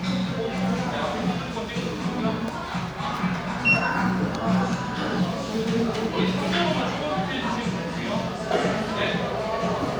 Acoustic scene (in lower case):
cafe